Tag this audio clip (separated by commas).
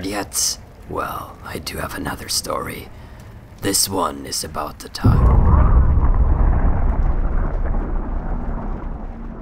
Speech